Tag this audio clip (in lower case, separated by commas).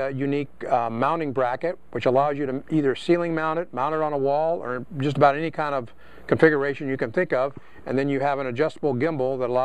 speech